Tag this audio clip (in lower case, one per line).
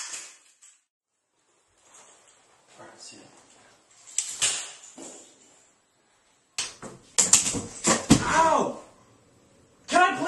speech